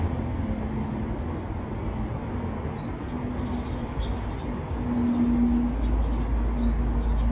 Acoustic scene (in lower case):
residential area